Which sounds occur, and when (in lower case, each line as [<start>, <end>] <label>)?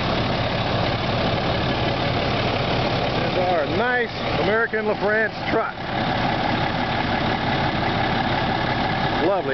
[0.00, 9.53] heavy engine (low frequency)
[0.00, 9.53] idling
[3.16, 4.09] male speech
[4.33, 5.76] male speech
[9.16, 9.53] male speech